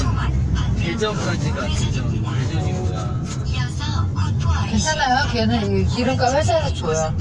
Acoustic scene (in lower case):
car